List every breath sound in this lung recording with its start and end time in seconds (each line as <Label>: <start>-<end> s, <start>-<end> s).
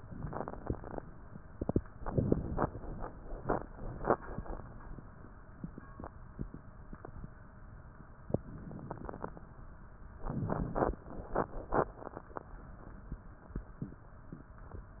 Inhalation: 0.10-0.93 s, 2.07-2.70 s, 8.46-9.39 s, 10.27-11.03 s
Crackles: 0.10-0.93 s, 2.07-2.70 s, 8.46-9.39 s, 10.27-11.03 s